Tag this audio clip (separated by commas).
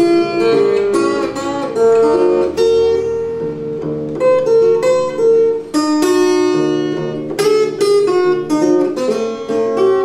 Plucked string instrument, Guitar, Musical instrument